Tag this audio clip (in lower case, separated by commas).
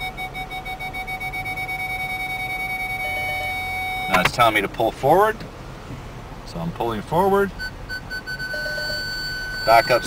vehicle, car, speech